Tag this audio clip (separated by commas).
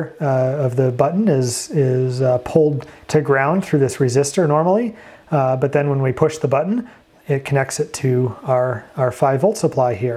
Speech